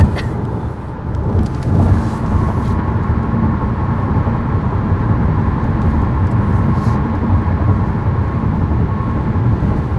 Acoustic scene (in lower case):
car